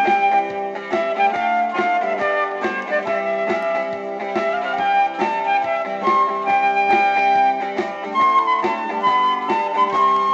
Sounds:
guitar, christian music, christmas music, music

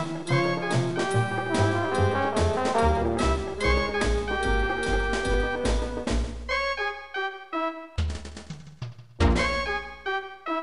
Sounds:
music, trombone

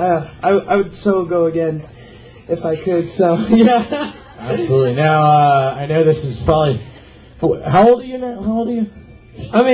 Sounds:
speech

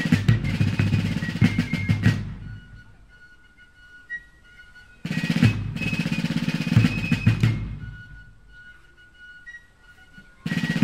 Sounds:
music, drum, bass drum

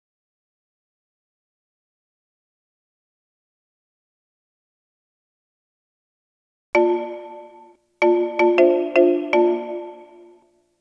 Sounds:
music

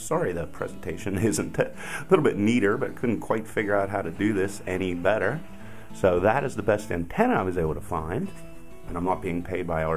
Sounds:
music, speech

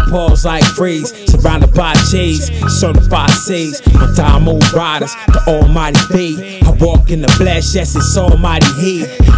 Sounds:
music

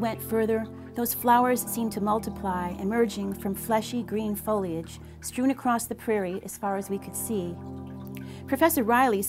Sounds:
speech, music

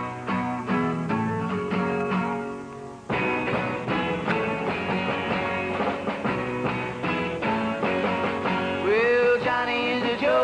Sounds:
music

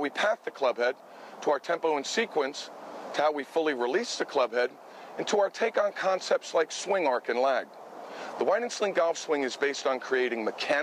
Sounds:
rustling leaves, speech

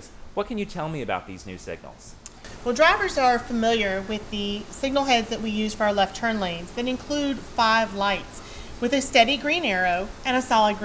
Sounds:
speech

